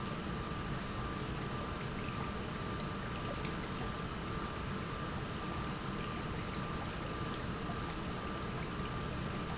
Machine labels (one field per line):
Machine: pump